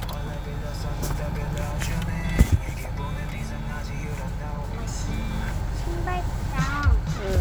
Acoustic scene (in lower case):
car